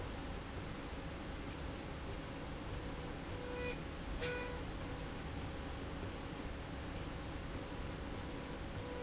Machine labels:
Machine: slide rail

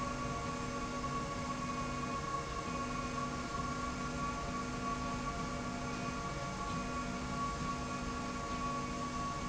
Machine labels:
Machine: slide rail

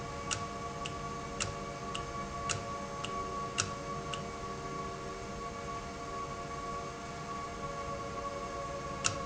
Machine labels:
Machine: valve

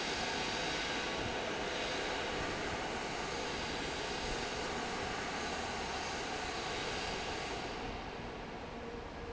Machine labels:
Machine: fan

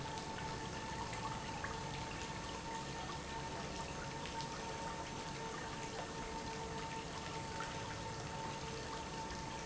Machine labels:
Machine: pump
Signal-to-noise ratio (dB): 0 dB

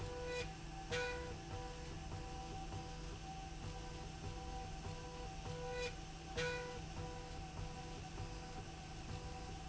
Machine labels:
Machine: slide rail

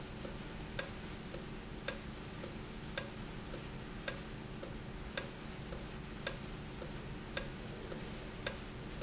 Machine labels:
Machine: valve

